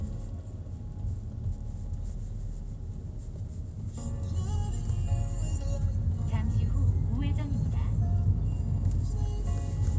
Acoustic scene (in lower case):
car